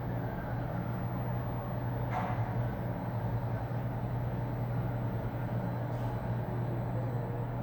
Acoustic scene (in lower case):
elevator